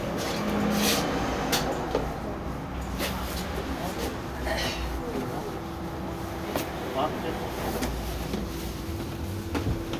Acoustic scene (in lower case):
bus